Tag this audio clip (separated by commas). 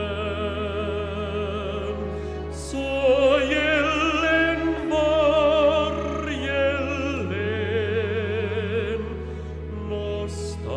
Music